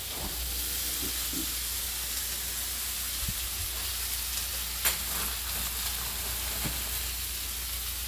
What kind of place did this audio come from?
kitchen